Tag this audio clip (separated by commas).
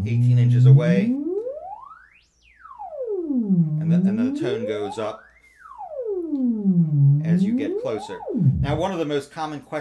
playing theremin